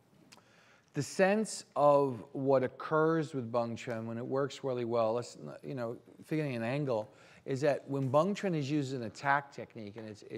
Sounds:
speech

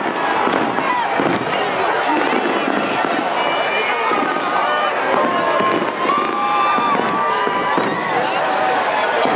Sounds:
speech

